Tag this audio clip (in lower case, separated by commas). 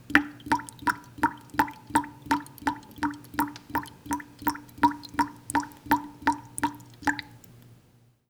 raindrop, rain, water, drip, liquid